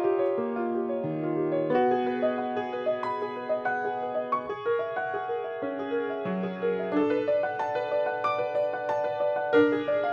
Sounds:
music

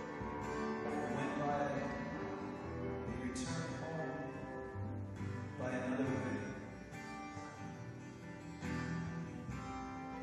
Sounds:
male singing
music

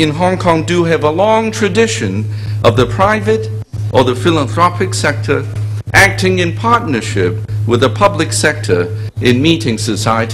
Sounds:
narration
speech

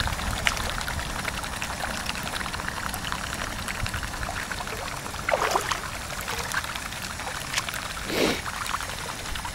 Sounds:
gurgling

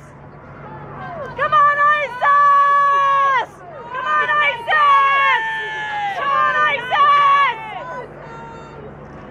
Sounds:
speech

